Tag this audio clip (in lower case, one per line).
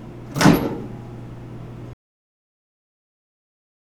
domestic sounds
microwave oven